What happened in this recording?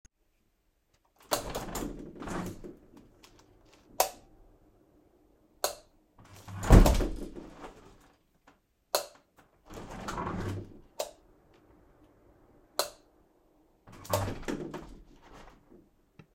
Turning light switch off and opening window for fresh air